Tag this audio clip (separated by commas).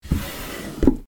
Drawer open or close, Domestic sounds